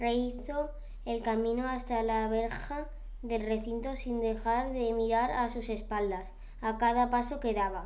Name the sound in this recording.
speech